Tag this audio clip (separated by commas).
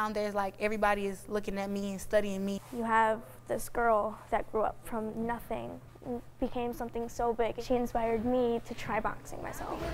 Female speech